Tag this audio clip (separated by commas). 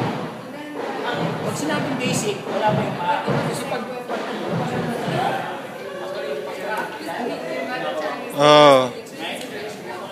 Speech, inside a large room or hall